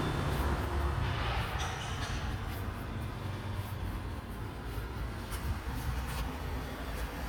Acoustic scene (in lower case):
residential area